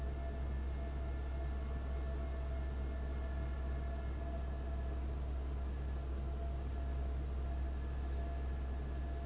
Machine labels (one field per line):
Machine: fan